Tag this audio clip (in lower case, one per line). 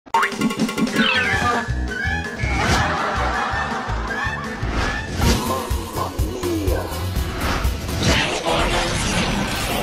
music
laughter